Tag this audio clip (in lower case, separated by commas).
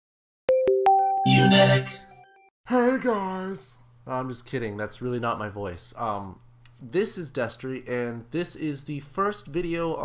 sound effect, music, speech